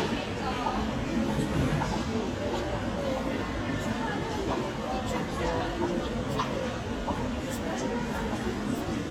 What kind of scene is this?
crowded indoor space